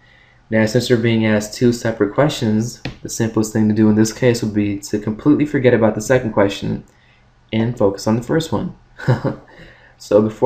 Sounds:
Speech

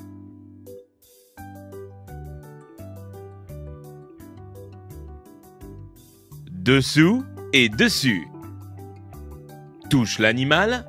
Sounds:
Music, Speech

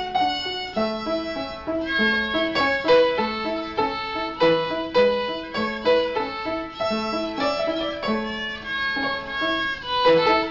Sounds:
Musical instrument, Music, Violin

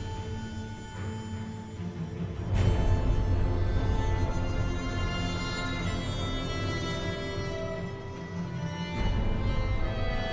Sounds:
Background music, Music

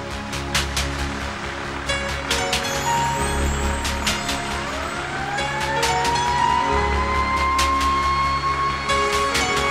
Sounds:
fire truck (siren), Music, Emergency vehicle

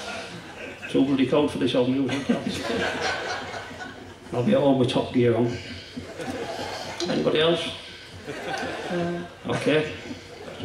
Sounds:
Speech

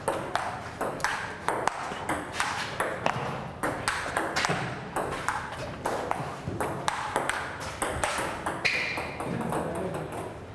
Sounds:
Speech

